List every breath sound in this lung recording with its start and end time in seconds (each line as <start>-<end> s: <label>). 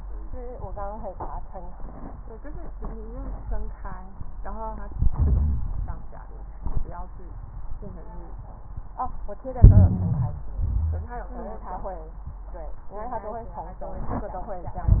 4.89-5.99 s: inhalation
4.89-5.99 s: crackles
9.62-10.51 s: inhalation
9.62-10.51 s: crackles
10.49-11.16 s: exhalation